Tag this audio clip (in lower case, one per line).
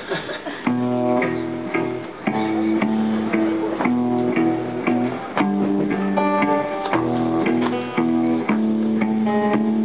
music